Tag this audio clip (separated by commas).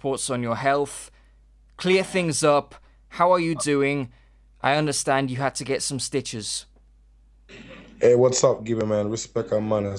Speech